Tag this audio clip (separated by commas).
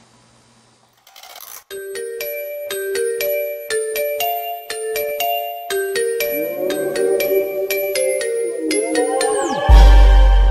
Music